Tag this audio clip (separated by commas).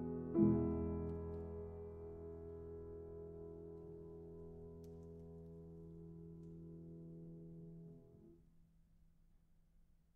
playing castanets